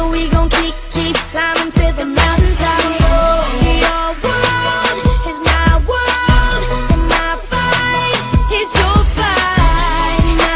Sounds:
Music

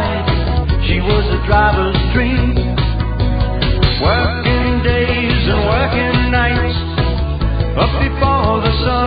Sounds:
Dance music, Independent music, Music

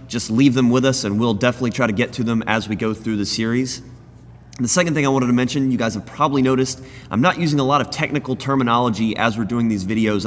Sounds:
Speech

